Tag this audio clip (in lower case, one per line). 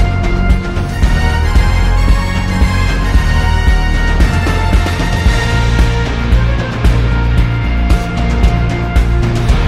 music